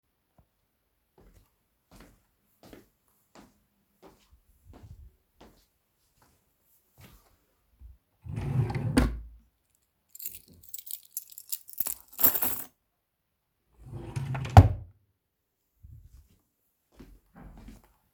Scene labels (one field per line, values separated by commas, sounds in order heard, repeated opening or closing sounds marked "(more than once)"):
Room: bedroom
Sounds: footsteps, wardrobe or drawer (more than once), keys